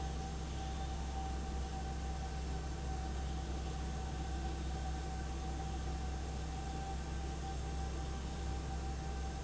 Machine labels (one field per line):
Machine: fan